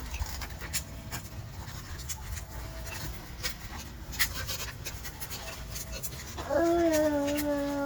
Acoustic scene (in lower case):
park